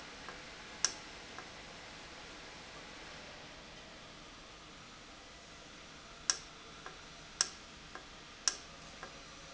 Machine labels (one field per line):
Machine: valve